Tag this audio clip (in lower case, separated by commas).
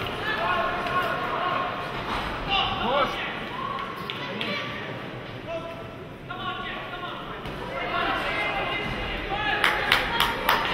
inside a public space, speech